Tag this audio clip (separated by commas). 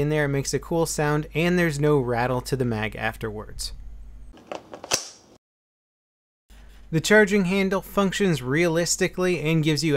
Speech, inside a small room